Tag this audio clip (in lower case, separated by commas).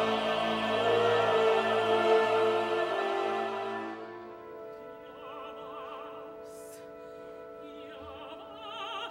music, opera